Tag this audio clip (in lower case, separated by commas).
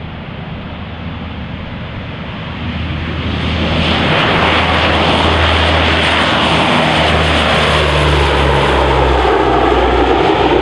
airplane flyby